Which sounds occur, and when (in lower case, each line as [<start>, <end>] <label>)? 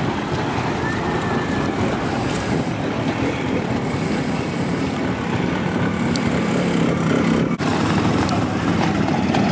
[0.00, 9.51] car
[7.65, 9.51] motorcycle